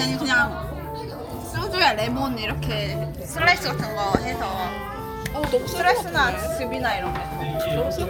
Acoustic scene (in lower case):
crowded indoor space